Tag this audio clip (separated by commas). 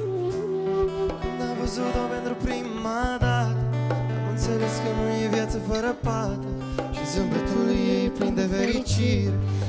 Music